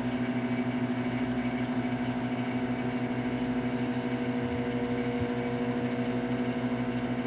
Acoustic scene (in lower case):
kitchen